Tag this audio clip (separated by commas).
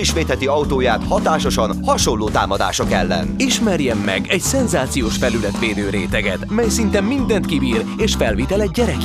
Speech, Music